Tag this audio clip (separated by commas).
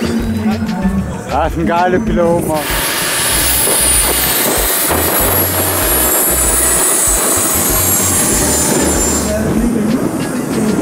outside, rural or natural, Aircraft engine, Music, Vehicle, Fixed-wing aircraft, Speech